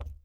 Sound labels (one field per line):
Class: object falling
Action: being thrown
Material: plastic